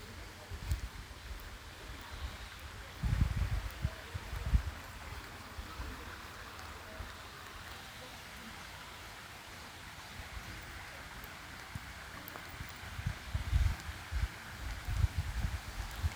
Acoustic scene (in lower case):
park